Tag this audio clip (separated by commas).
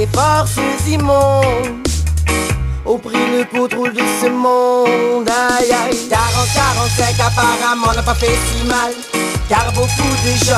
Music